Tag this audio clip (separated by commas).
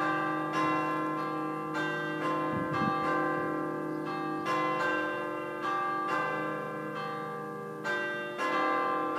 Change ringing (campanology)